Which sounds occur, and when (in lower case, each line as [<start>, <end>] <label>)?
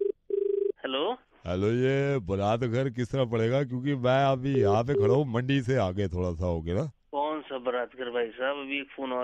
[0.00, 0.09] telephone bell ringing
[0.00, 9.23] background noise
[0.28, 0.69] telephone bell ringing
[0.74, 1.21] male speech
[1.33, 6.89] male speech
[4.45, 4.61] busy signal
[4.82, 5.09] busy signal
[7.11, 9.23] male speech